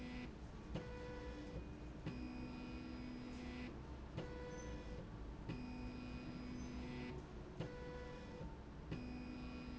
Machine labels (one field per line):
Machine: slide rail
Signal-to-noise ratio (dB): 6 dB